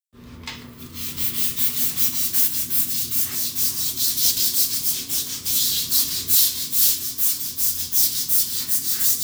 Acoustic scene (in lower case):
restroom